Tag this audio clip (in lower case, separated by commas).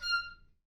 music, musical instrument, woodwind instrument